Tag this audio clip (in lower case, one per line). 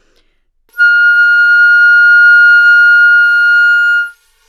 musical instrument
music
woodwind instrument